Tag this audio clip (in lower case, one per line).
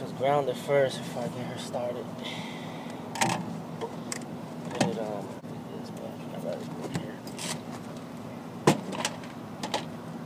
speech